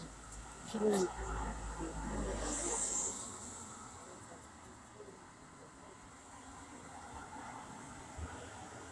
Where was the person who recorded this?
on a street